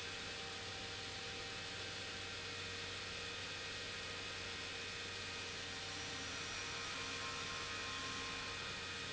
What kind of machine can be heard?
pump